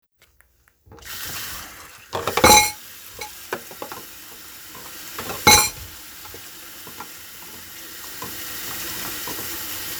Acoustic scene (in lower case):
kitchen